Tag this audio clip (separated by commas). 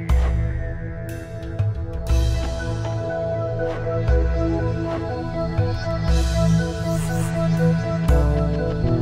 Music